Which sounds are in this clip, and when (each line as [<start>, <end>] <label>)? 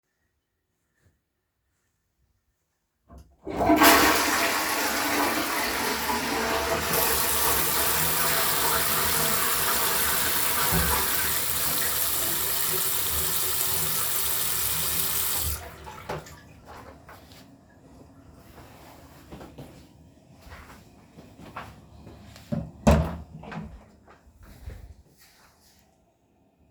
[3.35, 12.27] toilet flushing
[6.85, 15.80] running water
[22.14, 23.88] door